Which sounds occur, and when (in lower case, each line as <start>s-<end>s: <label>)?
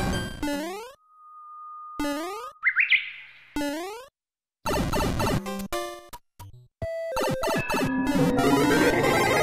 0.0s-0.4s: music
0.0s-2.6s: sound effect
0.0s-4.1s: video game sound
2.6s-3.1s: tweet
2.6s-3.5s: wind
3.5s-4.1s: sound effect
4.6s-6.7s: video game sound
4.6s-5.4s: sound effect
5.4s-6.7s: music
6.8s-9.4s: music
6.8s-9.4s: video game sound
7.2s-7.9s: sound effect
8.1s-9.4s: sound effect